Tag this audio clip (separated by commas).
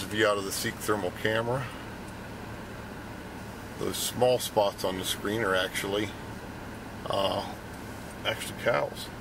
Speech